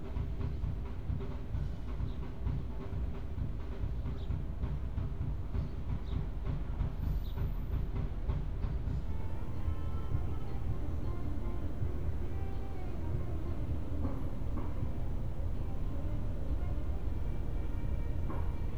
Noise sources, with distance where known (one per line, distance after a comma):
music from an unclear source